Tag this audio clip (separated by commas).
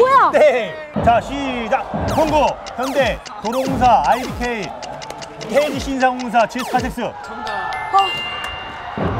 playing volleyball